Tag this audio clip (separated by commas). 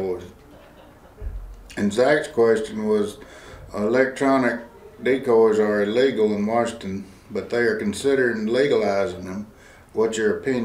Speech